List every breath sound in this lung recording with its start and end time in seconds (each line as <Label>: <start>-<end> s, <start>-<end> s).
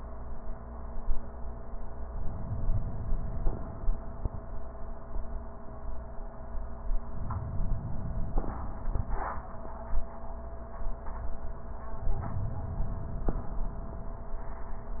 Inhalation: 2.06-3.89 s, 7.05-8.88 s, 12.13-13.96 s